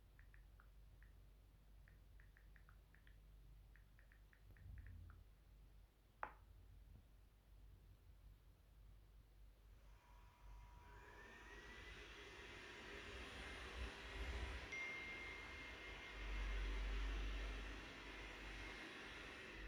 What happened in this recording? After typing a message, I started the vacuum cleaner. Meanwhile I got a phone notification.